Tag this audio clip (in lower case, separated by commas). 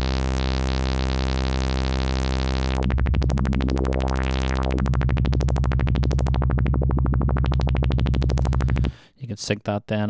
synthesizer, speech